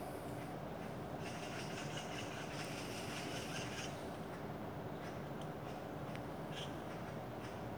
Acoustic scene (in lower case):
park